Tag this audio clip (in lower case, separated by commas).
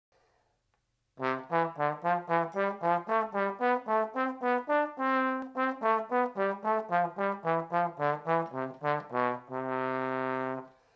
playing trombone